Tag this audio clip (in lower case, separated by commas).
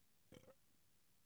burping